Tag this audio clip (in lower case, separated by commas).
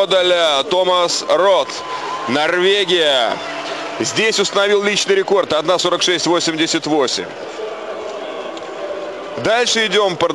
inside a public space, speech